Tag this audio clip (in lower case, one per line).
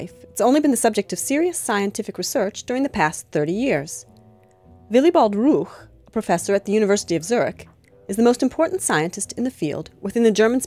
speech
music